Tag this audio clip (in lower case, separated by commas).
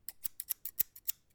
scissors, home sounds